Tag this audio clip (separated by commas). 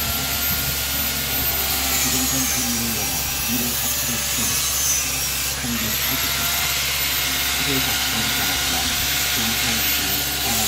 electric grinder grinding